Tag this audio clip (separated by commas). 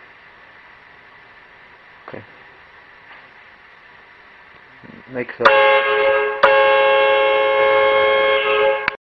honking